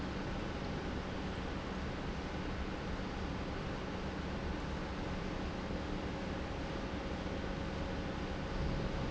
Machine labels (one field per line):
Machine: pump